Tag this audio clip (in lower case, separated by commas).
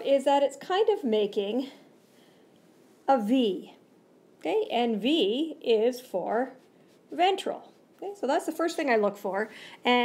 speech